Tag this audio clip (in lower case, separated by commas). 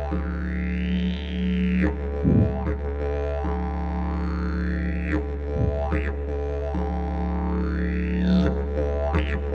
playing didgeridoo